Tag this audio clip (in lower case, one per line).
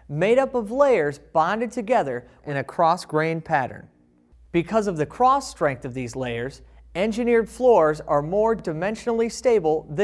speech